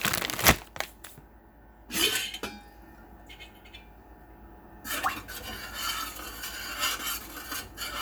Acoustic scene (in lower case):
kitchen